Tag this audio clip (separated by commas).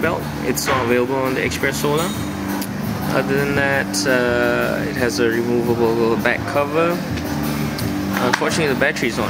Speech, Music